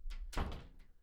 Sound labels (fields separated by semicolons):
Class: door; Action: closing; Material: wooden